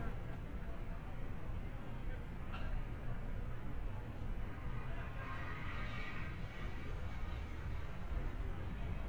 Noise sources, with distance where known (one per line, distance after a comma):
medium-sounding engine
car horn